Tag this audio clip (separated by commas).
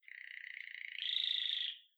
bird call, Wild animals, Bird, Animal, Chirp